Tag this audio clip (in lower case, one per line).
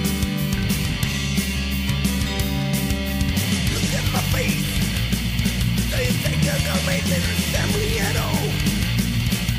music